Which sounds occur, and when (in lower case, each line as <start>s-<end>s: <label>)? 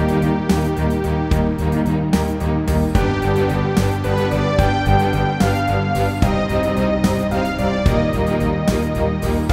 0.0s-9.5s: music